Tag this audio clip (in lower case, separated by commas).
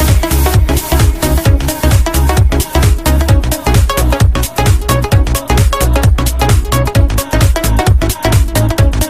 music, dance music